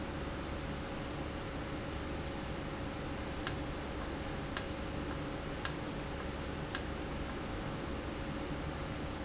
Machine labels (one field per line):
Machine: valve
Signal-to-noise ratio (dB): -6 dB